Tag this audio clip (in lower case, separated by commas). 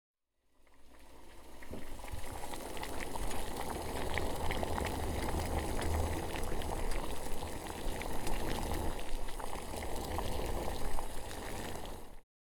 boiling, liquid